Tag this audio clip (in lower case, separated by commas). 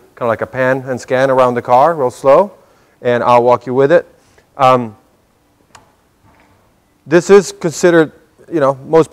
speech